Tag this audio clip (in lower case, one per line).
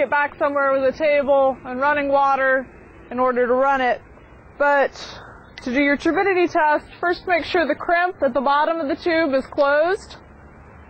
speech